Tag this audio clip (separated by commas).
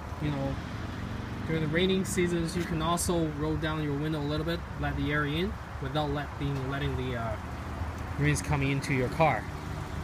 Vehicle, outside, urban or man-made, Speech